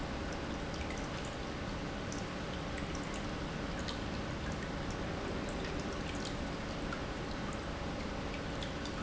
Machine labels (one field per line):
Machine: pump